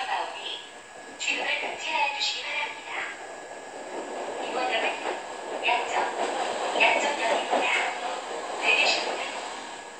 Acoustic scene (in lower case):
subway train